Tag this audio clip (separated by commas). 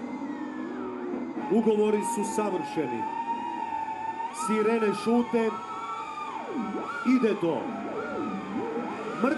Speech, Screaming, Sound effect, people screaming